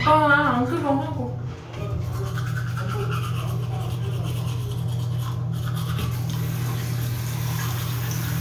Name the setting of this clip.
restroom